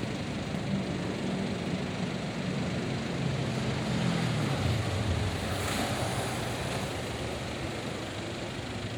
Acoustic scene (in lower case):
street